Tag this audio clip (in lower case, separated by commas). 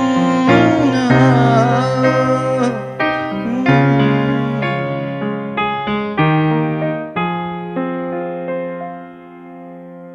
singing, music, electric piano